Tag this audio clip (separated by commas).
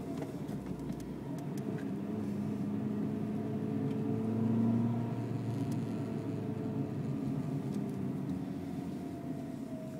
Microwave oven